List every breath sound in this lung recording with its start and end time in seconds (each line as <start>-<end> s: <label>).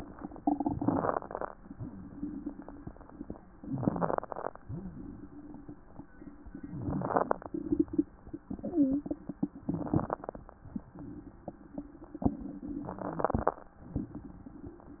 0.76-1.54 s: inhalation
3.74-4.52 s: inhalation
6.77-7.55 s: inhalation
8.63-9.03 s: wheeze
9.68-10.46 s: inhalation
12.88-13.66 s: inhalation